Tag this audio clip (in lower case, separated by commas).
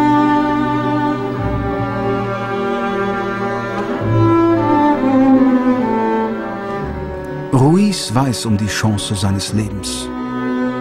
violin, double bass, bowed string instrument, cello